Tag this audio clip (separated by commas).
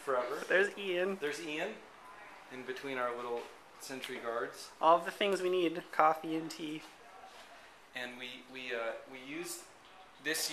Speech